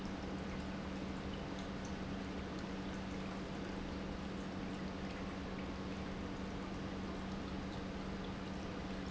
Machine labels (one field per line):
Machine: pump